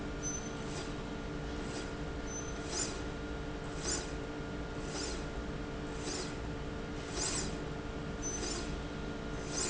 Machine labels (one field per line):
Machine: slide rail